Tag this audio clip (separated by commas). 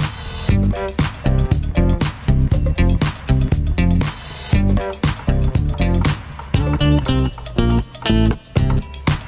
Music